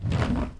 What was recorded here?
wooden drawer opening